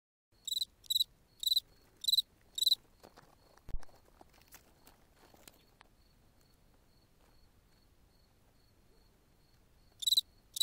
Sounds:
cricket chirping

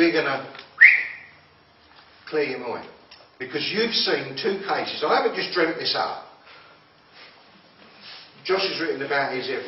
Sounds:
whistling

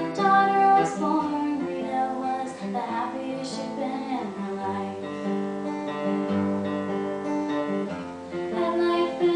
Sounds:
music
female singing

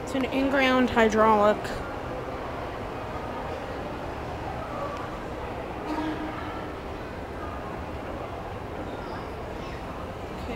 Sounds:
speech

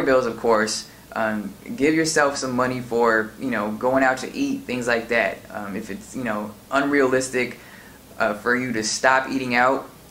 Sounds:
speech

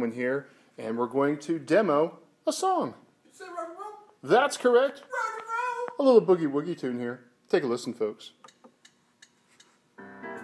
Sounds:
music
speech

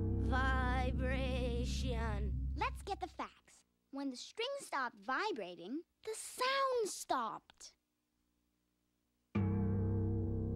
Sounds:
speech

